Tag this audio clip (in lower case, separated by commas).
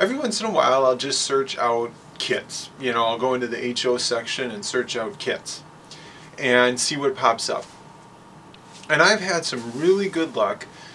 inside a small room, speech